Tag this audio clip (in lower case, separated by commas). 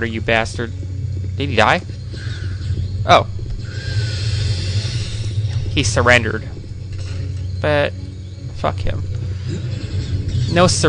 speech